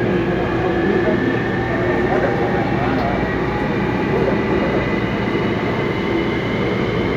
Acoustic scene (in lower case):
subway train